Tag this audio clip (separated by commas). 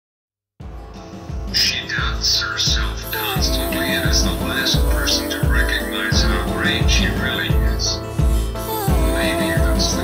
Music, Speech